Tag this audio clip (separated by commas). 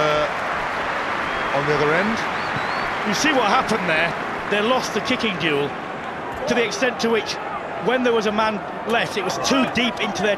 Speech